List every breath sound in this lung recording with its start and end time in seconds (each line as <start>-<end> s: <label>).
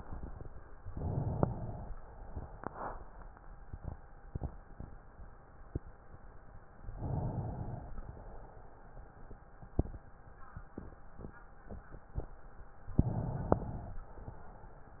0.89-1.85 s: inhalation
1.85-2.58 s: exhalation
7.01-7.98 s: inhalation
8.01-9.29 s: exhalation
12.93-13.97 s: inhalation
13.97-14.70 s: exhalation